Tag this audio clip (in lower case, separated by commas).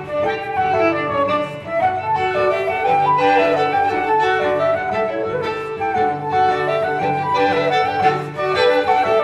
cello, double bass, bowed string instrument, fiddle